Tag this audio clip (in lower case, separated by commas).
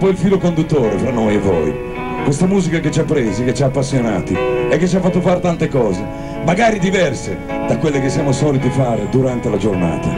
speech, music